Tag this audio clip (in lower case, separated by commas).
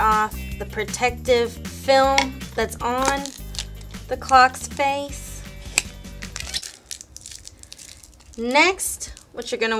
tick-tock, music, speech